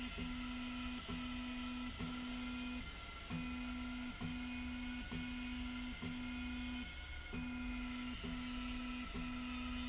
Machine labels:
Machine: slide rail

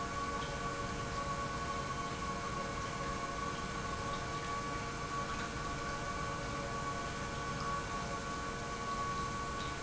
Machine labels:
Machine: pump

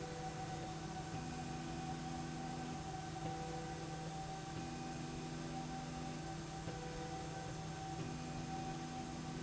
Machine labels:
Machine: slide rail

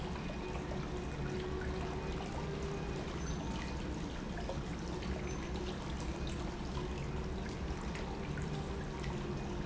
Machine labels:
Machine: pump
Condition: normal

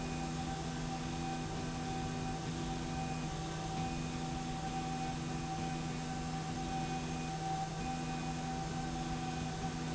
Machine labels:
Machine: slide rail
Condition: normal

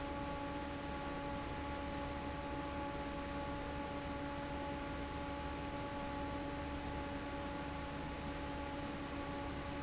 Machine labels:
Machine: fan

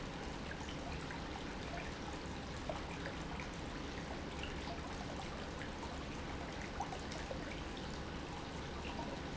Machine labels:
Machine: pump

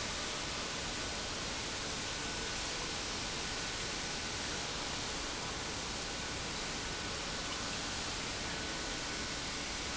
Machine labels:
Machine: pump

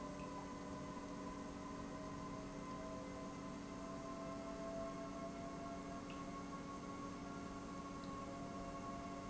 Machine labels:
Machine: pump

